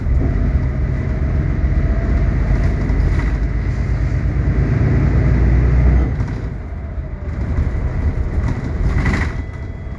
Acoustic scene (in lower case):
bus